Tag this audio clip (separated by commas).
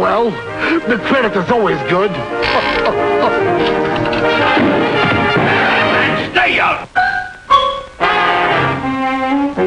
Speech, Music